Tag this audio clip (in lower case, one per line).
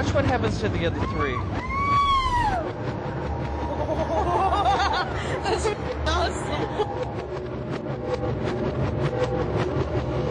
speech